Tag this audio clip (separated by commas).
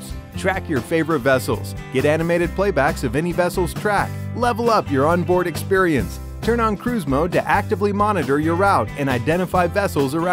Music, Speech